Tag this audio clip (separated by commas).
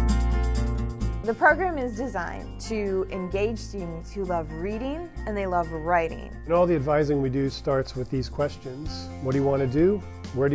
Music, Speech